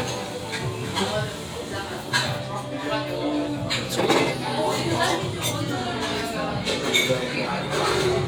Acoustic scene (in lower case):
restaurant